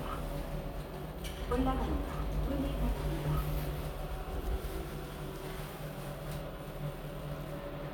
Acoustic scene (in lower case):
elevator